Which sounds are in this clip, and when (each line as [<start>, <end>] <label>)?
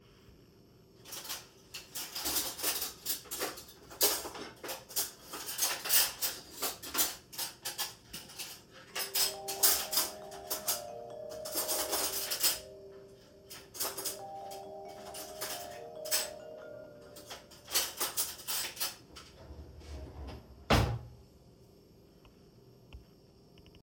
[1.03, 19.06] cutlery and dishes
[8.87, 17.55] phone ringing
[19.14, 19.24] cutlery and dishes
[19.54, 21.07] wardrobe or drawer